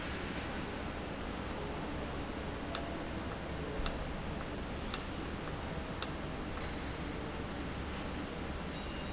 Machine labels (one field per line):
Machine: valve